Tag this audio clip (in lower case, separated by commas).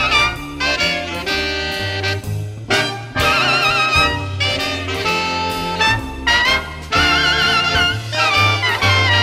trumpet, brass instrument